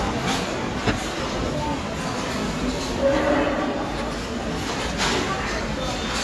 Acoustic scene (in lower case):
restaurant